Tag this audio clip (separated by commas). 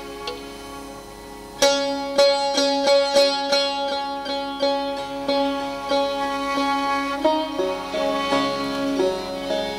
Music, Sitar